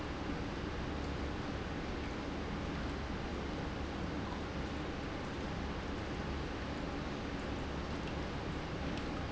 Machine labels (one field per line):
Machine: pump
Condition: normal